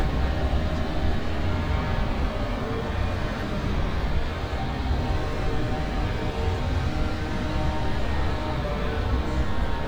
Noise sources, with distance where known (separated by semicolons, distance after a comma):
engine of unclear size